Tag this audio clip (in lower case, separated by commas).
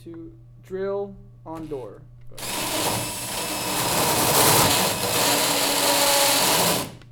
power tool, drill, tools